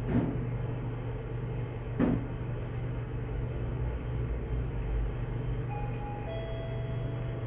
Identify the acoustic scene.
elevator